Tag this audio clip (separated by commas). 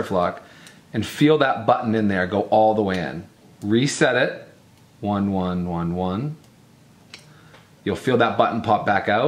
Speech